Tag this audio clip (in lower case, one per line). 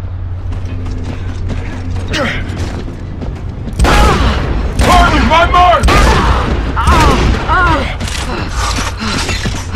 speech